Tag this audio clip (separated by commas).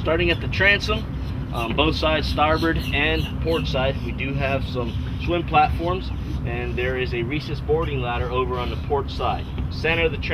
Speech